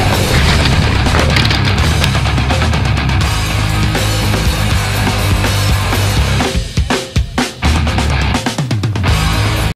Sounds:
Smash, Music

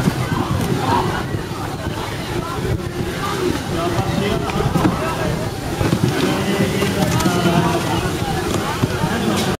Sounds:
Speech

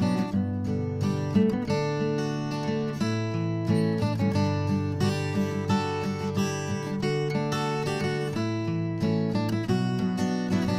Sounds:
Music

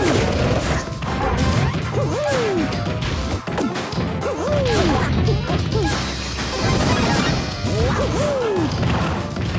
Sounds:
Music

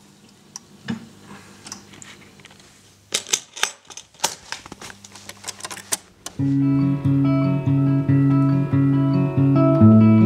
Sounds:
Music

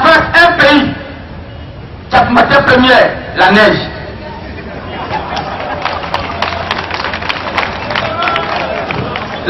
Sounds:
Speech

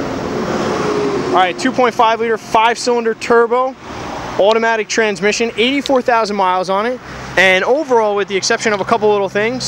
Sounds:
Vehicle, Speech, Car

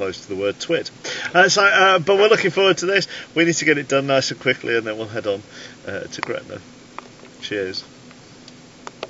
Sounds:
Speech

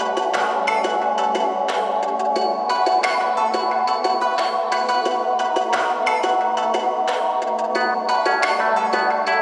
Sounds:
Music

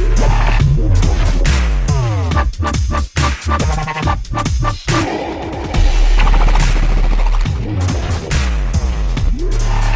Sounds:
Music, Dubstep, Electronic music

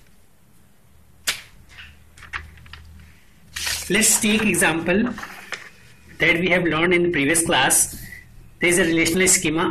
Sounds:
inside a small room, Speech

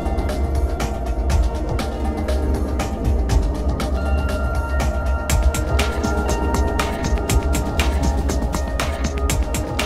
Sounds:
Music

